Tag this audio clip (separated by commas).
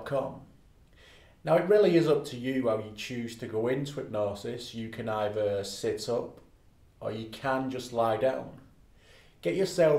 Speech